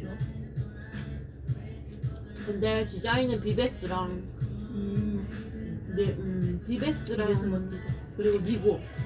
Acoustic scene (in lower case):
cafe